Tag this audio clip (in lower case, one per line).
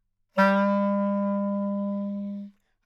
music
woodwind instrument
musical instrument